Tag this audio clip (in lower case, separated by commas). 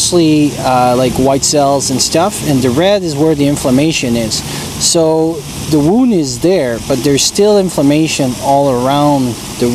speech, outside, urban or man-made